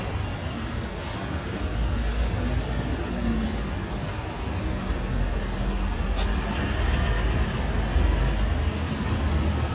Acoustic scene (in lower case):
street